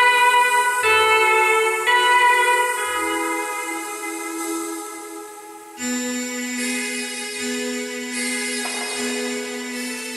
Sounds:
Tambourine, Music

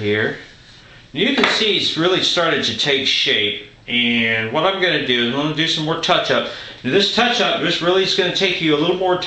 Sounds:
Speech

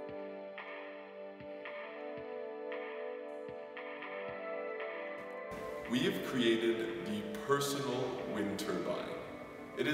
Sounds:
Speech, Music

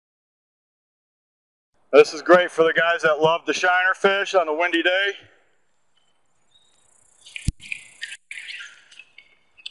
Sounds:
tweet, Speech

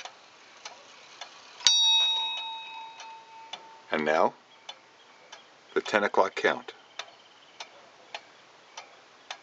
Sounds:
Speech, Clock, Tick-tock

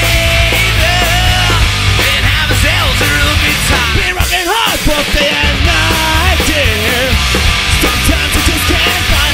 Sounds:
Exciting music, Heavy metal, Music, Punk rock, Progressive rock, Rock and roll

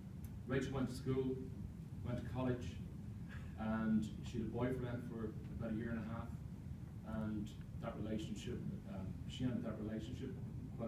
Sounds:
Narration, man speaking, Speech

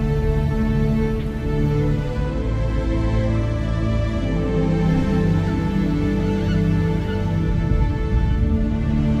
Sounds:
Music

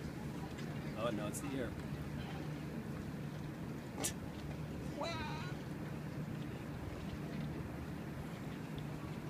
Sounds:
Speech

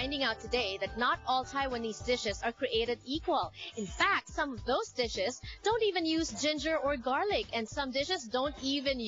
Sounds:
Music, Speech

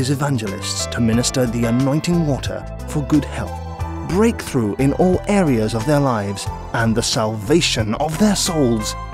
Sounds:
Speech, Music

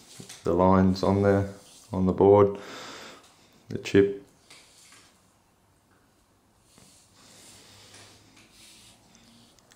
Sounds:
inside a small room, Writing, Speech

